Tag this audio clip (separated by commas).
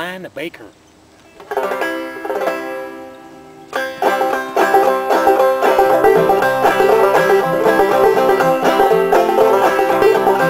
Musical instrument, Mandolin, Guitar, Plucked string instrument, Music, Banjo, Speech